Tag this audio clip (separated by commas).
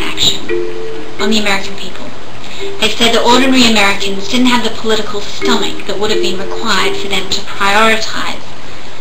Speech, Music